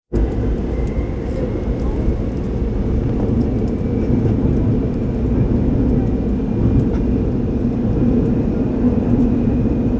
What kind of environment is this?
subway train